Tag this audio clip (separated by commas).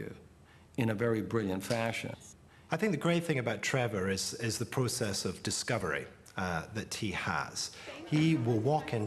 Speech